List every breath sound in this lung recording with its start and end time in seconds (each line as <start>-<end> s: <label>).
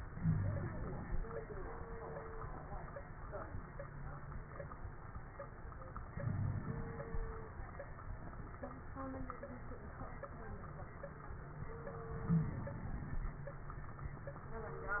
0.15-0.73 s: wheeze
0.15-1.16 s: inhalation
6.07-7.00 s: inhalation
6.20-6.65 s: wheeze
12.10-12.81 s: inhalation
12.27-12.59 s: wheeze